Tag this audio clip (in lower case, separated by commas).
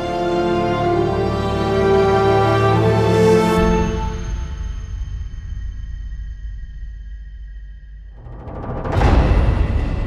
music